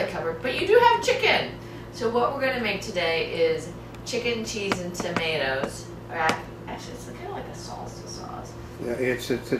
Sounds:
Speech

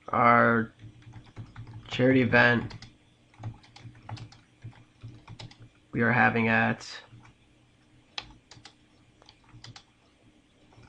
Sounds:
Computer keyboard

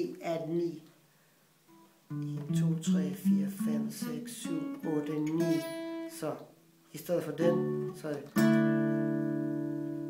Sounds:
Guitar, Music, Plucked string instrument, Speech, Strum, Musical instrument

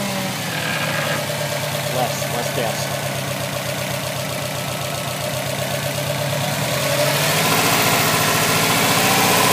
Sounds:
Speech

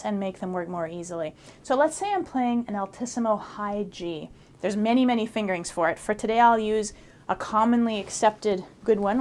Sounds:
Speech

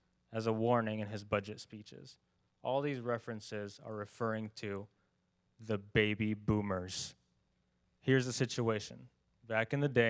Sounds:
man speaking, Narration, Speech

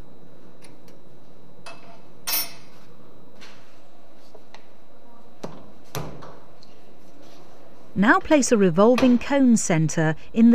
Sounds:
Speech

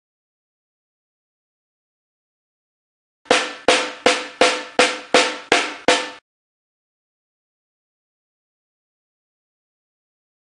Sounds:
playing snare drum

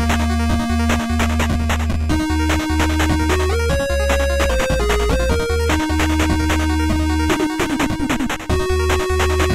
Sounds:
Punk rock, Rock and roll, Music

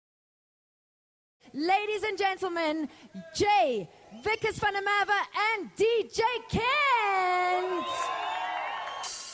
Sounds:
Music, Speech

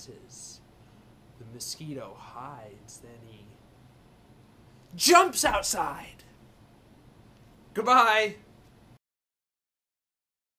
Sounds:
Speech

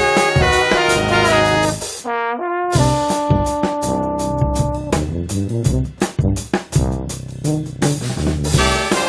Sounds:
Brass instrument, Trumpet, Trombone

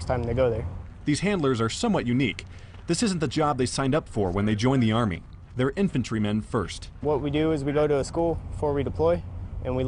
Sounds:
Speech

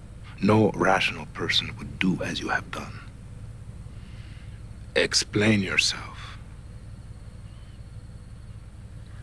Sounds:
Speech

